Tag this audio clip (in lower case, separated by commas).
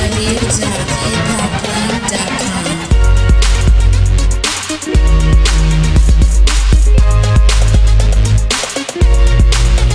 music, speech